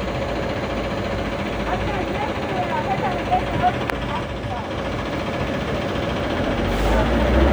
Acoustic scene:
street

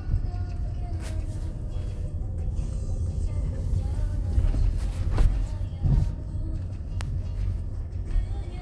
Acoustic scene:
car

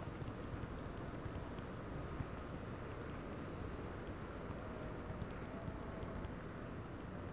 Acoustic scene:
residential area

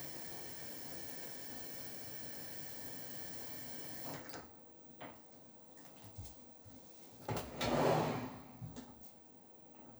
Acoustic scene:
kitchen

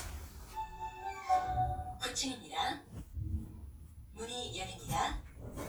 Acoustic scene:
elevator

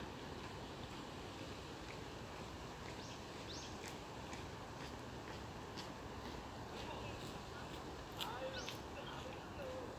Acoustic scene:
park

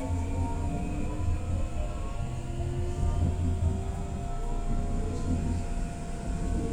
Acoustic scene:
subway train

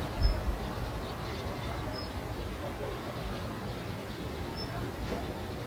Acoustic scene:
residential area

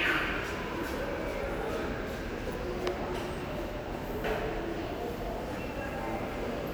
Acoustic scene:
subway station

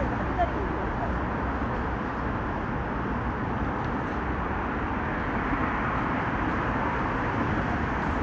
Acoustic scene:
street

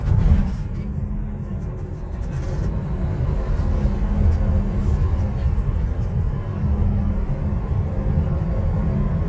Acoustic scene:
bus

